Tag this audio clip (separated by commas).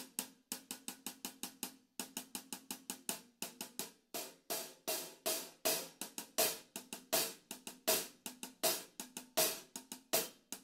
Cymbal, Hi-hat